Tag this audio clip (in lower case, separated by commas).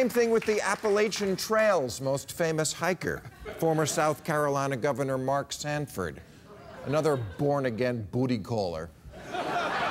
speech